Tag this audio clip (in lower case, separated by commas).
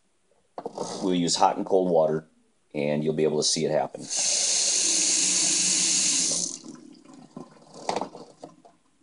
speech